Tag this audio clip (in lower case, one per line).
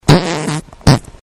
fart